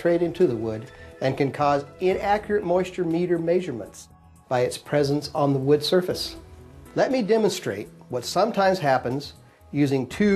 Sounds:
Speech, Music

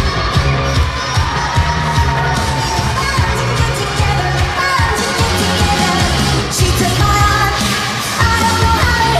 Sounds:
Music, Singing

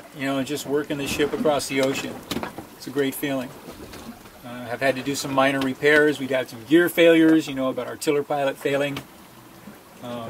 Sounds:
sailing ship, Speech, Water vehicle, Vehicle

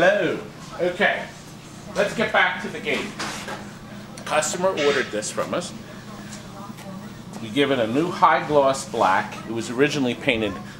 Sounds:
Speech, inside a large room or hall

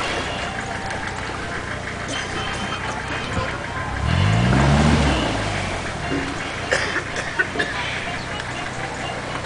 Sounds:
Speech, Music

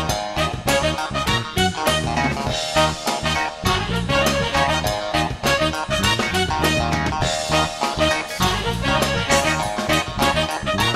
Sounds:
Cymbal, Hi-hat

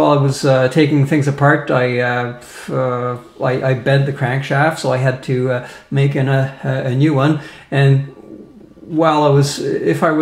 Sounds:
Speech

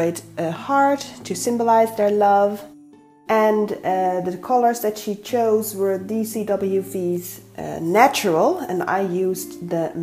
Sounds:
Music, Speech

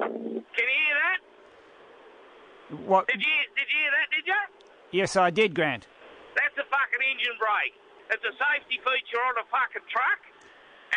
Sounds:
Speech

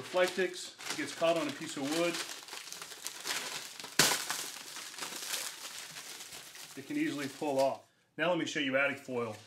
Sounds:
Crackle

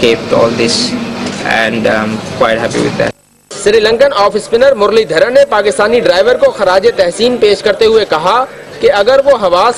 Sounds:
Speech

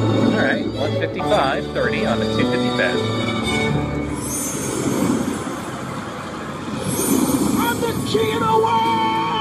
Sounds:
Music, Speech

